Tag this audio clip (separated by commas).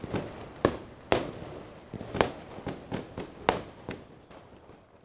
Fireworks, Explosion